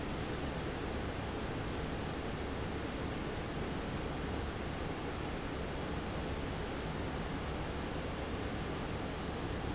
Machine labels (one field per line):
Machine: fan